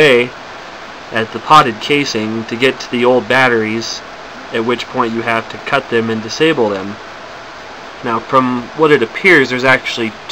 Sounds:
speech

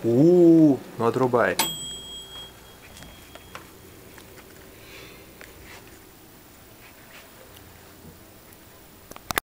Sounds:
speech

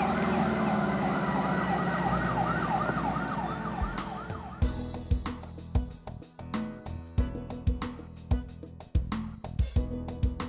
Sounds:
siren
ambulance (siren)
emergency vehicle

